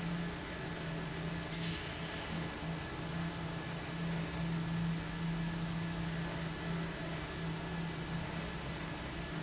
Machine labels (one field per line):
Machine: fan